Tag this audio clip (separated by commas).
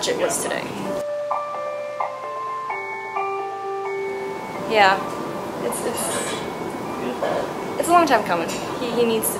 Glockenspiel, Mallet percussion, xylophone